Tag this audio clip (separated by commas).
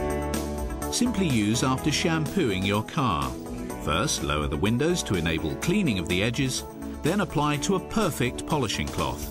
Speech, Music